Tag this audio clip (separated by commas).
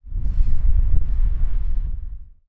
Wind